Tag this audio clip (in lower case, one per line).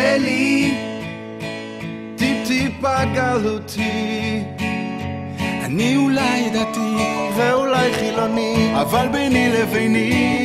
music